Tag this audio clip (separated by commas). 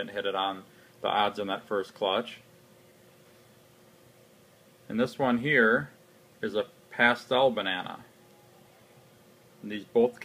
Speech